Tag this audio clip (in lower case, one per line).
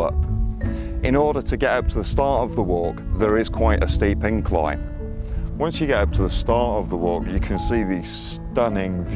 music
speech